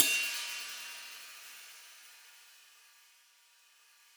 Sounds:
musical instrument, hi-hat, percussion, cymbal, music

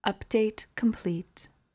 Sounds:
human voice, speech, female speech

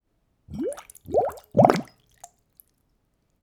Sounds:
water, liquid

